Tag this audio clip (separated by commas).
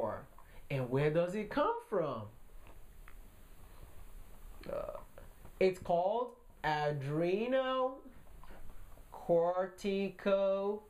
Speech, inside a small room